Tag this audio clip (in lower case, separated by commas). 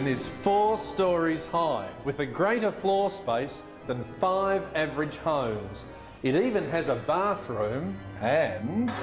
speech, music, musical instrument